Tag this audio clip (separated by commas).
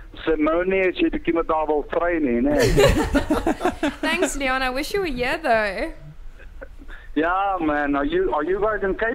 Speech